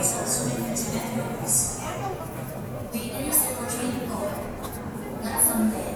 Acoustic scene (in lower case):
subway station